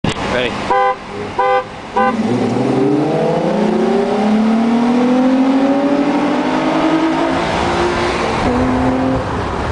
Man honks horn and drives off